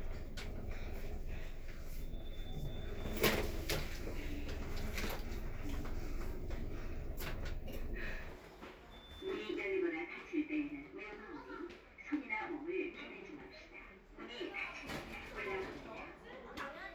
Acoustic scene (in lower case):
elevator